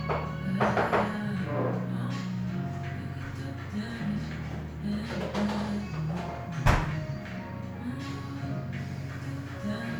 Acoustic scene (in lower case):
cafe